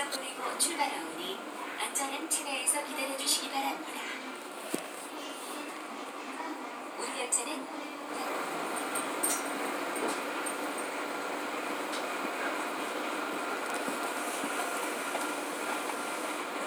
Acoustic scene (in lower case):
subway train